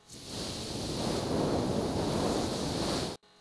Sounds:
water, hiss

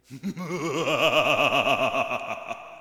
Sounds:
human voice, laughter

